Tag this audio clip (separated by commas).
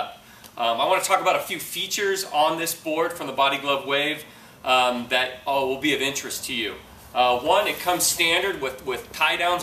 Speech